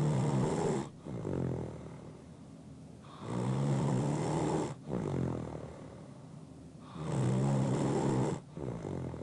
Someone snoring